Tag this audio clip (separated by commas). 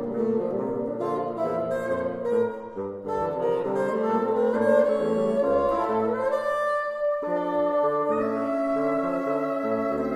playing bassoon